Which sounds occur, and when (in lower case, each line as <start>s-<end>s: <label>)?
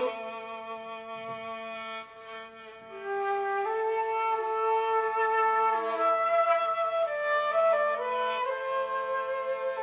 0.0s-9.8s: music